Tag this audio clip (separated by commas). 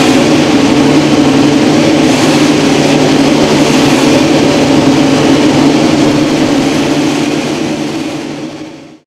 Heavy engine (low frequency)